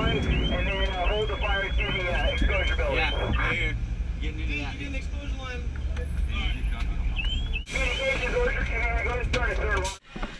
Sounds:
emergency vehicle
speech

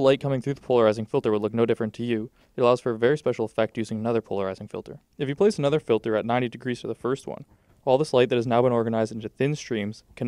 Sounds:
speech

